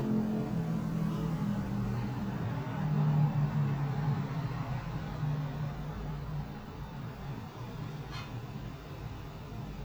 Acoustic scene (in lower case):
street